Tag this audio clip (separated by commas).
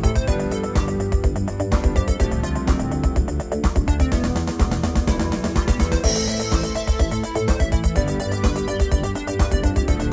Music